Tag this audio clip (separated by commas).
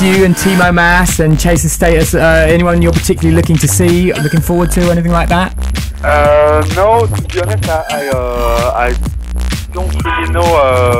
Music, Speech